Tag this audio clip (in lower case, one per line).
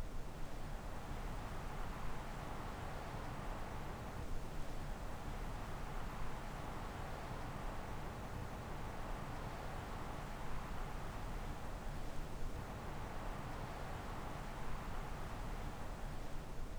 wind